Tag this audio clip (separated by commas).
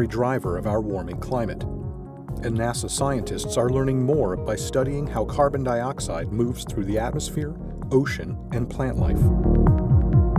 Music, Speech